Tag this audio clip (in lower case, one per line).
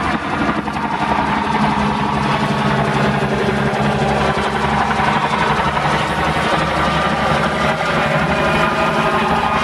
vehicle
helicopter